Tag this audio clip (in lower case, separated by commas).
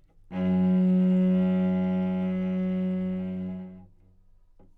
music, bowed string instrument, musical instrument